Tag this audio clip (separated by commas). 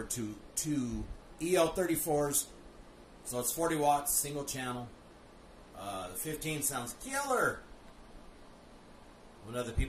Speech